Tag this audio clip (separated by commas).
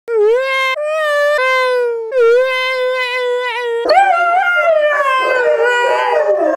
Sound effect